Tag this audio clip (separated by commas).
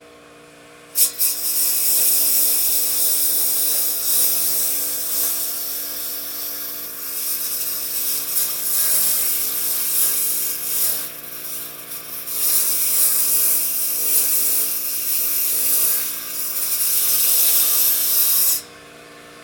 Engine